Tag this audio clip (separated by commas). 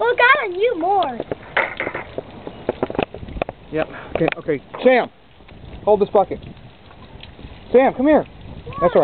Speech